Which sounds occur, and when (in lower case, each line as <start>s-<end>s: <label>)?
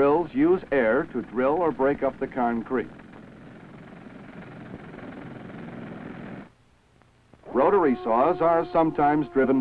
0.0s-2.8s: male speech
0.0s-6.5s: jackhammer
0.0s-9.6s: tape hiss
7.4s-9.6s: male speech
7.4s-9.6s: circular saw